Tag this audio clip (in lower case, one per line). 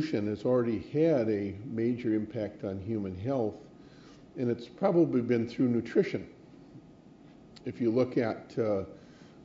speech